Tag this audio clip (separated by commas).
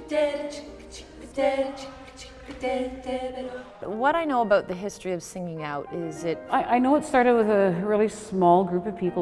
Speech, Female singing, Choir, Music